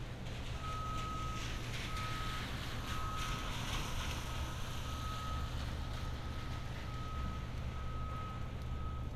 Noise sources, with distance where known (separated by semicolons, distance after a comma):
unidentified alert signal, far